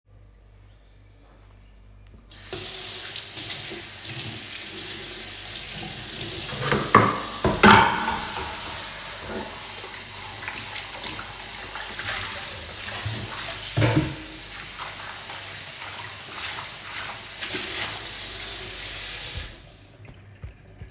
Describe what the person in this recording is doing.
I turned the tap on and start doing the dishes. Then, I turned the tap off.